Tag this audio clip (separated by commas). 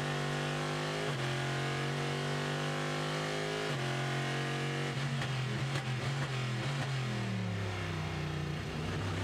Car passing by